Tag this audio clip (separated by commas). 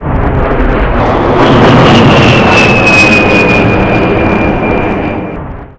Vehicle, Aircraft, Fixed-wing aircraft